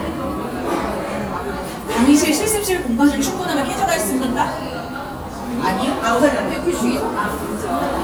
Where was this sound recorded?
in a cafe